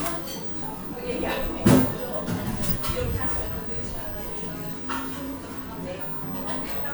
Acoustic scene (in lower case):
cafe